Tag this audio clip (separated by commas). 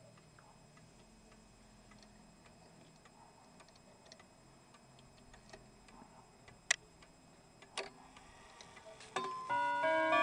Tubular bells